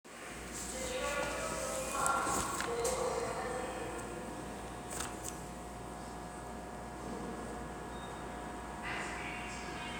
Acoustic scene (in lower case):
subway station